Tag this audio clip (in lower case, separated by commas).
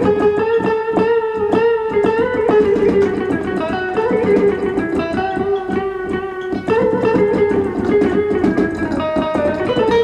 musical instrument, music